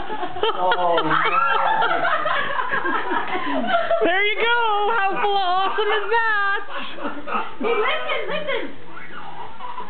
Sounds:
baby laughter
giggle
inside a small room
speech

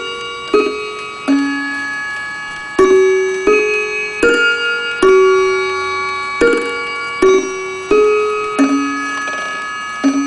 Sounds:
tubular bells
music

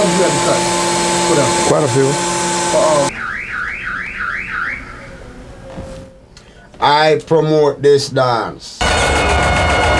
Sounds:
inside a small room
speech

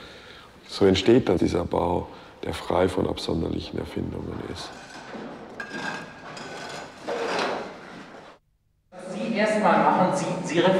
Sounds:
speech

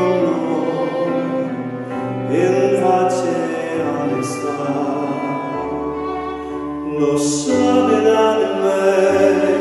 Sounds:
music
musical instrument
fiddle

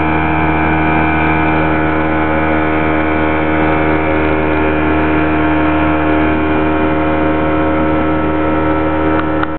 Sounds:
water vehicle
motorboat

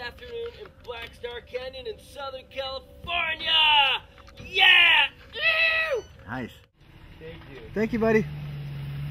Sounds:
speech

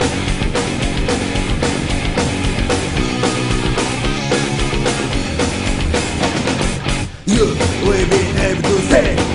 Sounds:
music

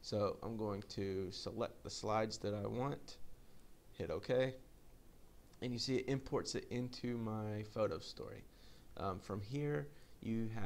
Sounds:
monologue
speech

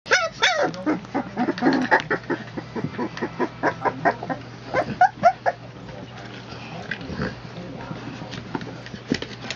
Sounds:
inside a small room
speech
pets
dog
animal

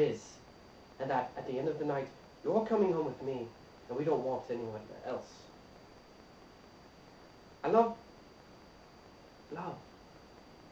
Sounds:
speech

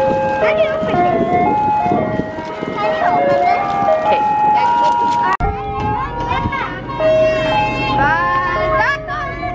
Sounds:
ice cream truck

